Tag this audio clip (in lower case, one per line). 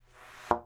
thump